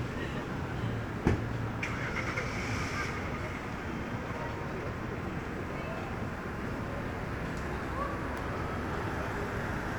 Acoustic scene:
street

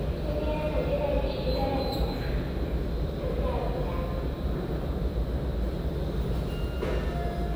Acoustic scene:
subway station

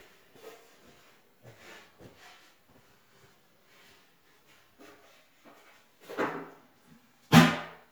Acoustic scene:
restroom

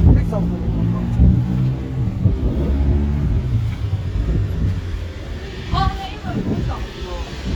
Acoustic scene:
street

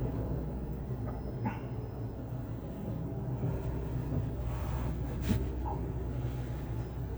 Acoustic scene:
car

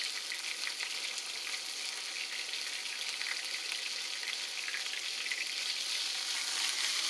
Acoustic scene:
kitchen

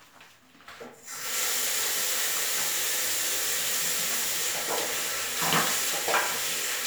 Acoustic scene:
restroom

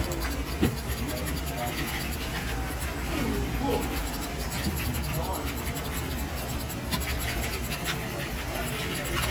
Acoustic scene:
crowded indoor space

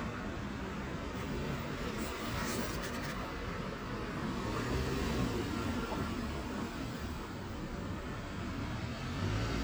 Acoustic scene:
residential area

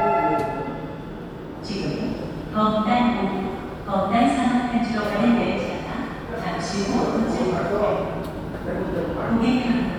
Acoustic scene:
subway station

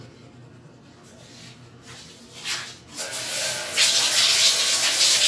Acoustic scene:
restroom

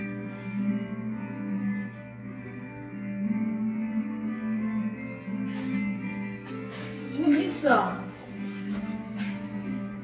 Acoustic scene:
cafe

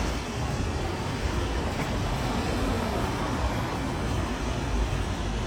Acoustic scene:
residential area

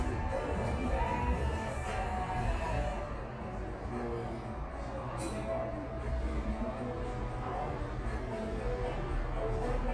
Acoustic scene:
cafe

